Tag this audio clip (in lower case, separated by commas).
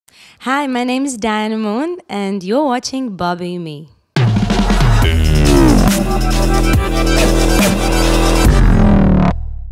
speech, music